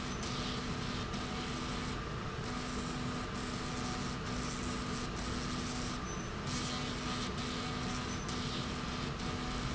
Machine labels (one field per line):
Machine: slide rail